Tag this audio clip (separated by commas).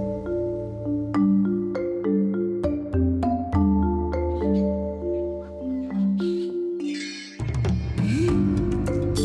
Music